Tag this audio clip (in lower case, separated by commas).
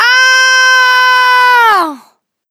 screaming, human voice